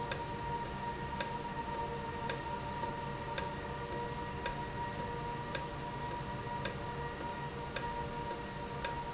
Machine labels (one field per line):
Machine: valve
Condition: normal